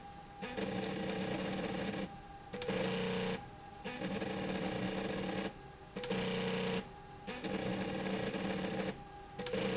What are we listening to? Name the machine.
slide rail